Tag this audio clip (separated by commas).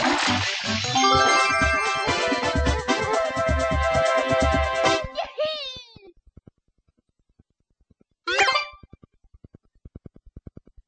Music